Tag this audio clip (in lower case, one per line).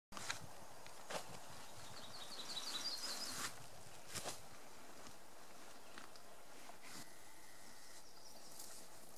bird call
bird
tweet